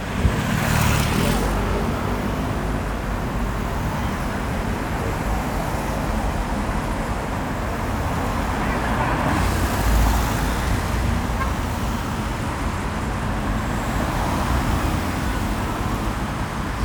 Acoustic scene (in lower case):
street